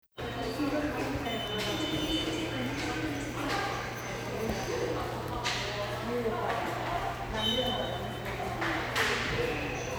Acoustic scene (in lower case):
subway station